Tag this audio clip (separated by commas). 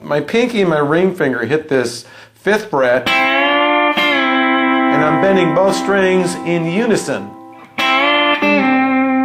Electric guitar, Music, Plucked string instrument, Guitar, Strum, Speech, Musical instrument